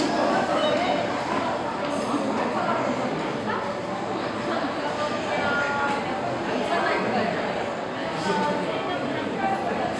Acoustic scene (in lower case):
restaurant